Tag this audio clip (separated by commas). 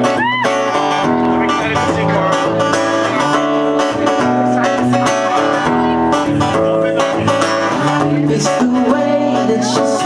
Speech, Music